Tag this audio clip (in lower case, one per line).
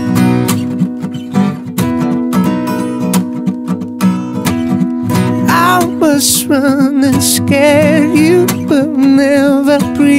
music